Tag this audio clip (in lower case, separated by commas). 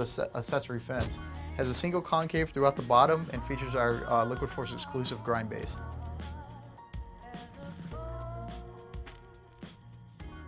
music, speech